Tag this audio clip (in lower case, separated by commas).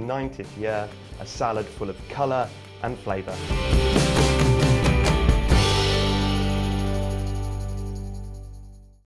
music, speech